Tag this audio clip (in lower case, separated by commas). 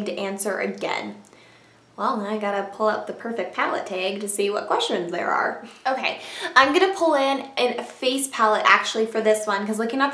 inside a small room, speech